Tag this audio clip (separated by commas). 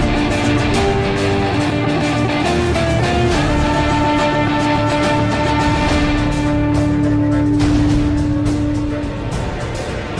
Musical instrument, Strum, Electric guitar, Music, Guitar, Plucked string instrument